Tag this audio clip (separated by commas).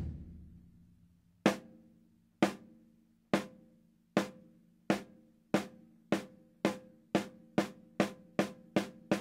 Music